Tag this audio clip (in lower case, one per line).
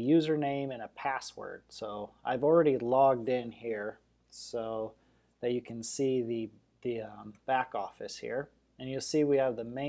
speech